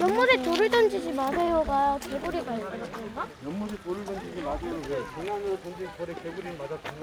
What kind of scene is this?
park